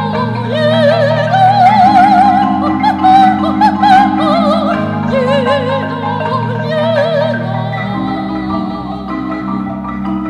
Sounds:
music, xylophone, percussion, musical instrument

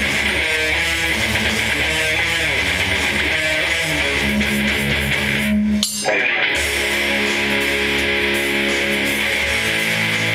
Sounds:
musical instrument, guitar, playing bass guitar, music, strum, bass guitar, plucked string instrument

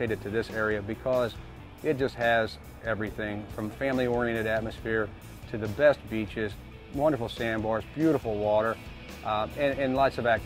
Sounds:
music, speech

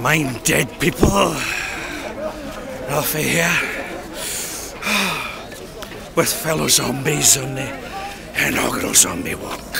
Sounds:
speech

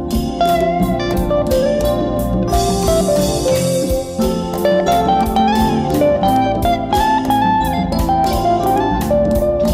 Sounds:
music, musical instrument, plucked string instrument, guitar

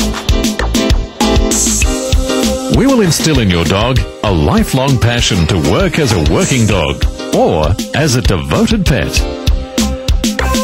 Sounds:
speech, music

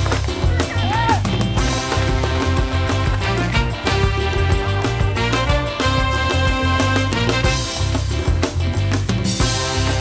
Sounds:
music, outside, rural or natural, speech

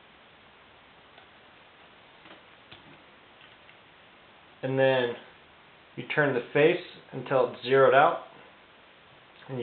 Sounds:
speech

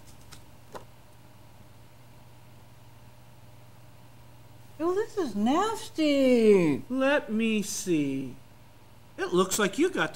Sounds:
speech

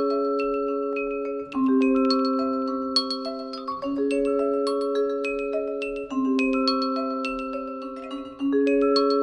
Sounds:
mallet percussion, glockenspiel

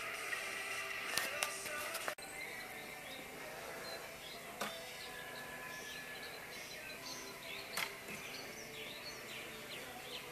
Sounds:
outside, rural or natural, music, bird song

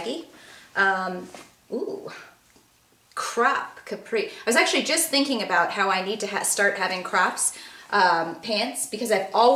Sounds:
speech, inside a small room

